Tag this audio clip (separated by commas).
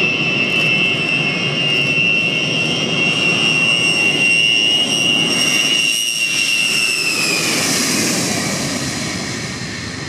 Fixed-wing aircraft, Jet engine, Vehicle, Aircraft